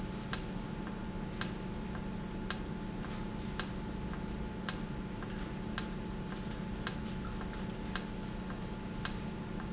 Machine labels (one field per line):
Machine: valve